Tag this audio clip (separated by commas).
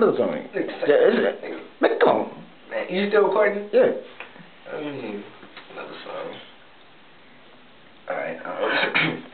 Speech